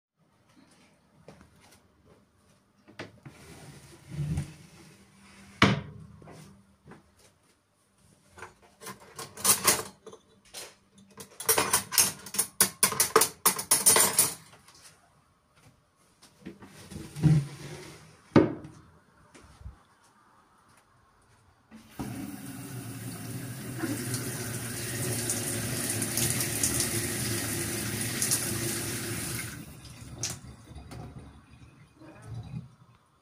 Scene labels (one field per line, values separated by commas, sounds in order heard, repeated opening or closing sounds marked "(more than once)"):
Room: kitchen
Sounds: footsteps, wardrobe or drawer (more than once), cutlery and dishes, running water